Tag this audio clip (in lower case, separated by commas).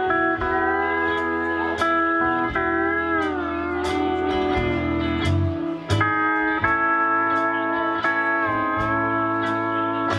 slide guitar